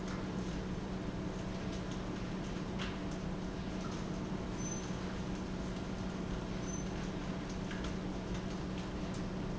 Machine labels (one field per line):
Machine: fan